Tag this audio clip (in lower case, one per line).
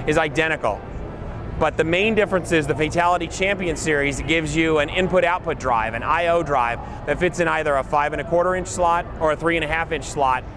speech